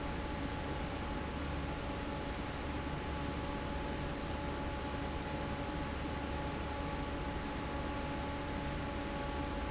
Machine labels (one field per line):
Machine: fan